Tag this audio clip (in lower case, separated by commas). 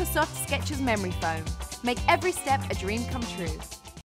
music, speech